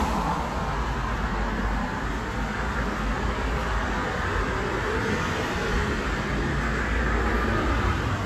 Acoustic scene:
street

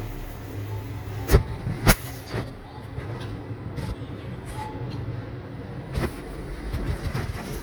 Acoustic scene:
elevator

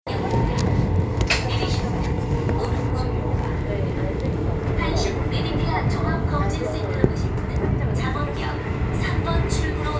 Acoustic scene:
subway train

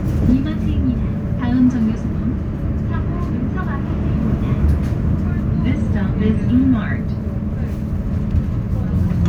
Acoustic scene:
bus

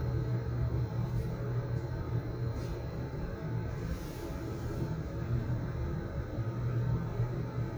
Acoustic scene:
elevator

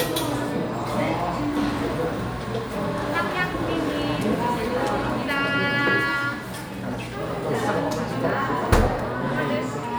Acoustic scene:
cafe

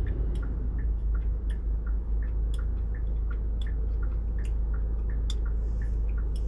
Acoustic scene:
car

